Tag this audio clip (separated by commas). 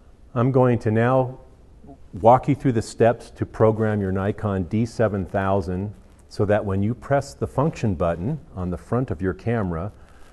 Speech